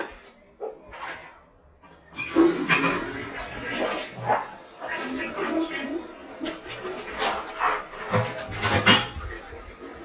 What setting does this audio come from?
restroom